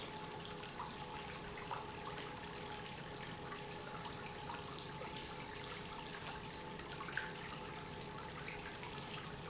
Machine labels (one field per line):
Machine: pump